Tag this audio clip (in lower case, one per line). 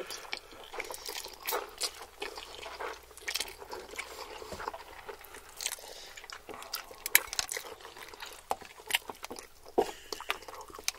people eating noodle